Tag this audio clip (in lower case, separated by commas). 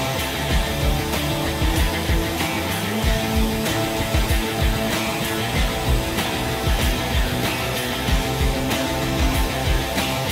music